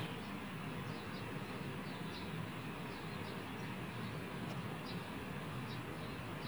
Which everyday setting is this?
park